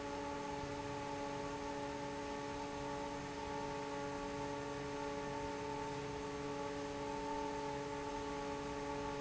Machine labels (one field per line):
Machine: fan